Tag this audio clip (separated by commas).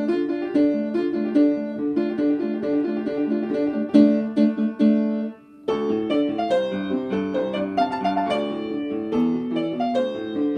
Music